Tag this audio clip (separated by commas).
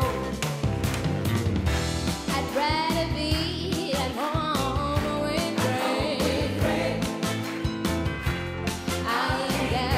Music